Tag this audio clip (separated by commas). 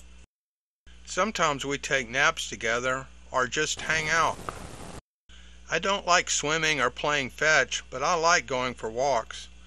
Speech